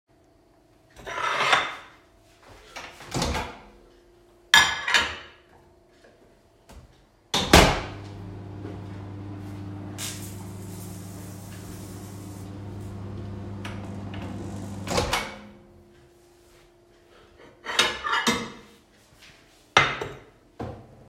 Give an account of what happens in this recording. took a plate, opened the microwave, placed the plate inside, closed the microwave, then opened it, then took the plate out.